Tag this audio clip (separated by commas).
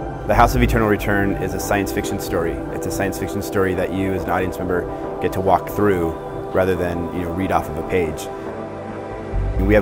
Speech, Music